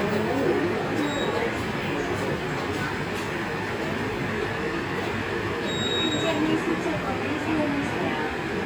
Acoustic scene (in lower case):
subway station